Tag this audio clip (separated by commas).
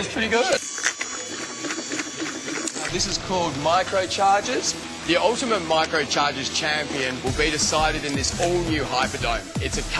Speech, Music